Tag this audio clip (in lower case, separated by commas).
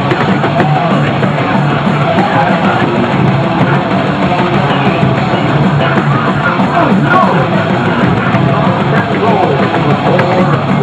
music, speech